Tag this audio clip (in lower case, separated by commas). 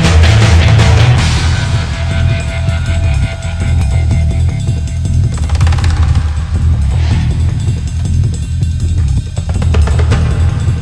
music, angry music